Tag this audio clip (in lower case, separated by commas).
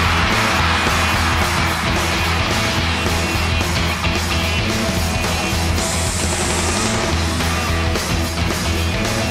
music